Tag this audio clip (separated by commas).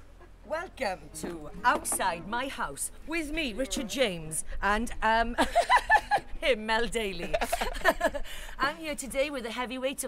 Speech